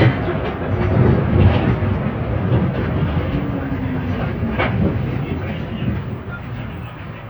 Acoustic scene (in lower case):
bus